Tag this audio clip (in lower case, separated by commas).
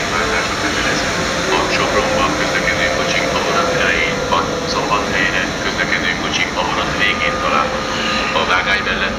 vehicle, idling, speech, engine, heavy engine (low frequency)